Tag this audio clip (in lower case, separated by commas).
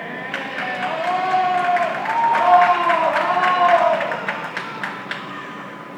hands, human group actions, clapping, human voice, cheering